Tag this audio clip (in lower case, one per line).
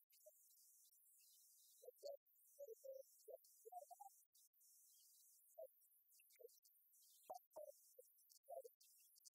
speech